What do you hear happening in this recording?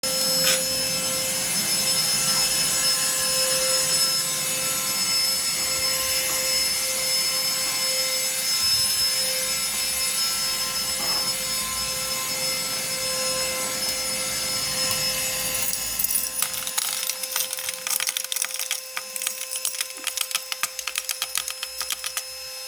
I turn on vacuum cleaner, walk while vacuuming then shake keys while walking